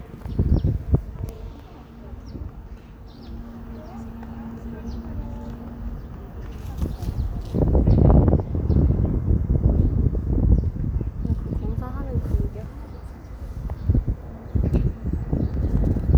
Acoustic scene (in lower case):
park